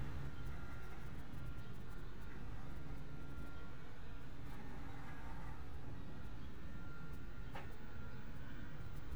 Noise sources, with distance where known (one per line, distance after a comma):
background noise